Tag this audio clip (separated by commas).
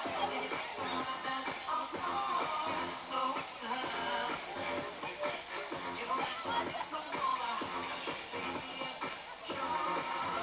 Speech, Music